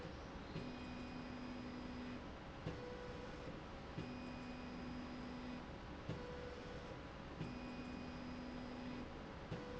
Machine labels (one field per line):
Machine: slide rail